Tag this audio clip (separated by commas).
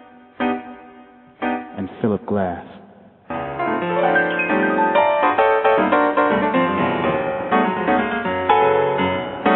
Speech, Music